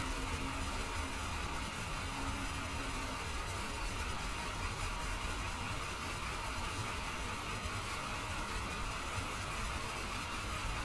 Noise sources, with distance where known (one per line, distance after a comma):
large-sounding engine, near